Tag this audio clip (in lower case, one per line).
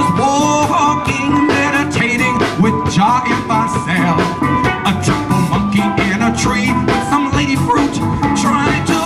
drum
musical instrument
bass drum
music
drum kit